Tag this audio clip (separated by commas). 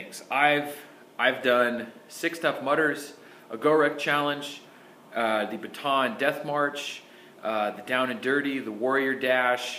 Speech, Male speech, inside a small room